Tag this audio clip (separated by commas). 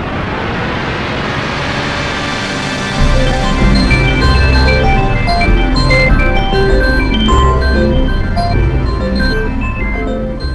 Music